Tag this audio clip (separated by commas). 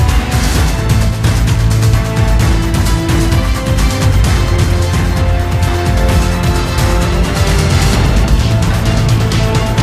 Music